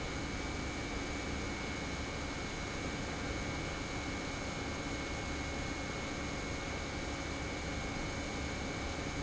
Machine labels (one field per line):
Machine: pump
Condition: normal